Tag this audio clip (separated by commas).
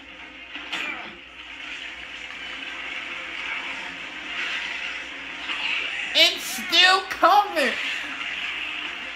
Speech